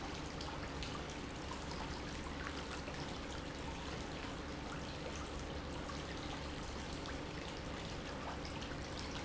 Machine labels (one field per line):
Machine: pump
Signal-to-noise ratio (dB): 0 dB